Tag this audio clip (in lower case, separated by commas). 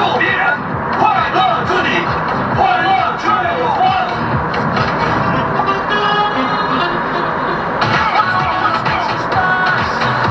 car passing by, music